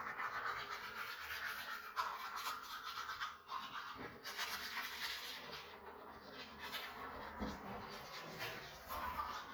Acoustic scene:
restroom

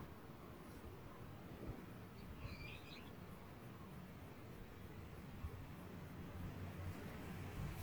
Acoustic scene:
park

